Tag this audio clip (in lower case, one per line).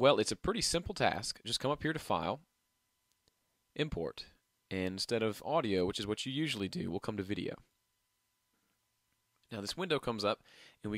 speech